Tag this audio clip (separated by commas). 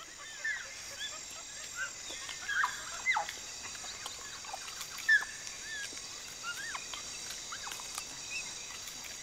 chimpanzee pant-hooting